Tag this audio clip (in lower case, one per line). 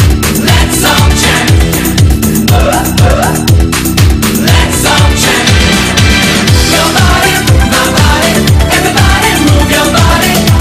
music